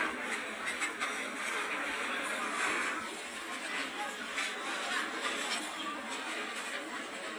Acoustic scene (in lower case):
restaurant